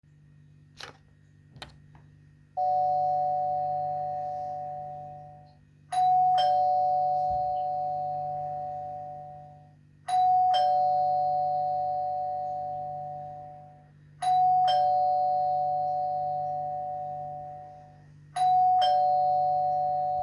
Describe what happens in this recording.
A ringing bell sound is heard in a hallway environment while the recording device remains static.